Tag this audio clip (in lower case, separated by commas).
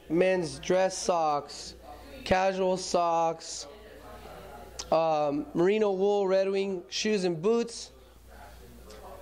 speech